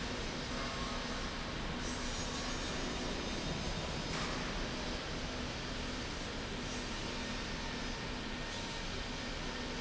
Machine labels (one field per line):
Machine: slide rail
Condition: normal